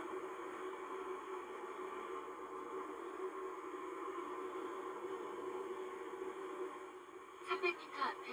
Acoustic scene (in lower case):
car